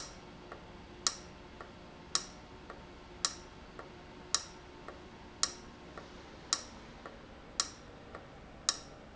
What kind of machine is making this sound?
valve